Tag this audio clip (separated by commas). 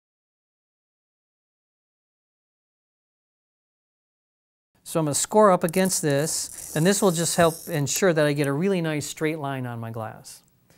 Speech